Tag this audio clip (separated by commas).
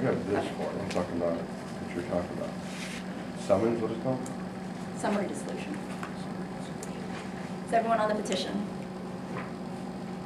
Speech